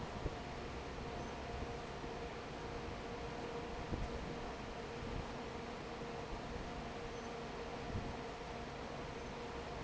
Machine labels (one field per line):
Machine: fan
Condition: normal